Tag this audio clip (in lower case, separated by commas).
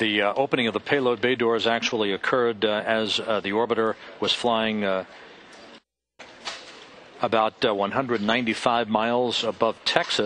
speech